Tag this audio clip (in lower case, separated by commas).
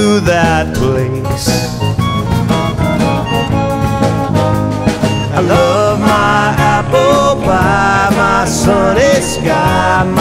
music